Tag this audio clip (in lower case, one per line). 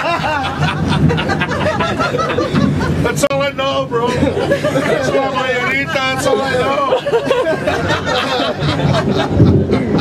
speech